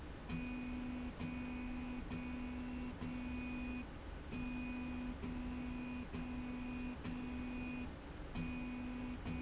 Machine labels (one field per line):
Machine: slide rail